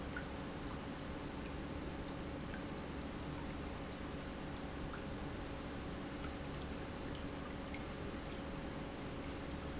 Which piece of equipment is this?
pump